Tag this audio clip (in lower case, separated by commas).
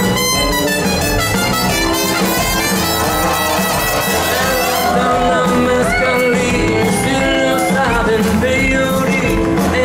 bagpipes, playing bagpipes, singing, music